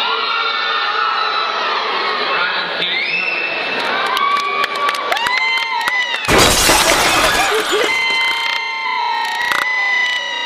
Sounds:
inside a large room or hall, speech

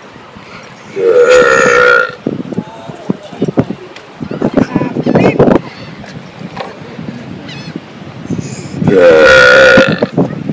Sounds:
people burping

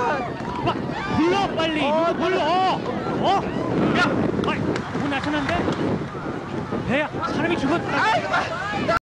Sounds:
speech

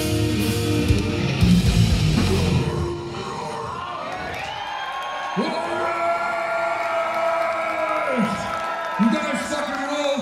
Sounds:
heavy metal, music, speech

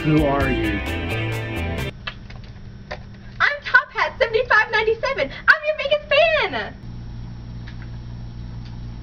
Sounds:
speech, music

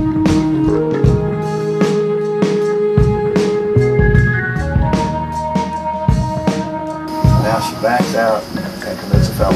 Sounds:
speech, music

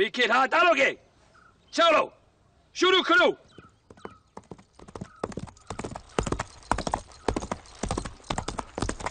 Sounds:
firing muskets

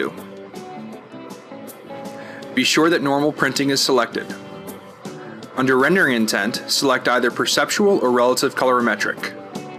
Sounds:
music, speech

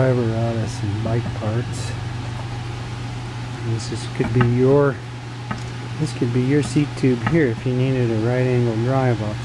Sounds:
speech

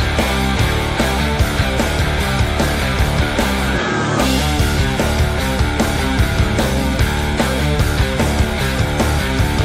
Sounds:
music

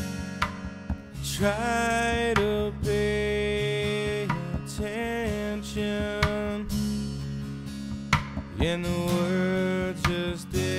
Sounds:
plucked string instrument, musical instrument, music, guitar, acoustic guitar

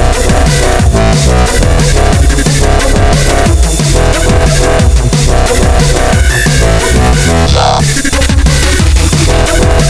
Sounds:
music, bass drum, dubstep, drum and bass

